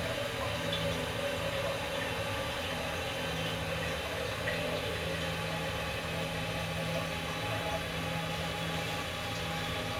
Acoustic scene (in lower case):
restroom